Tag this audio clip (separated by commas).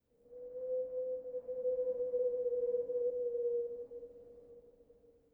Wind